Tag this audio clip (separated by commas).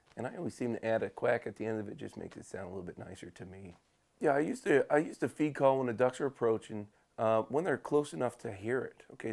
Speech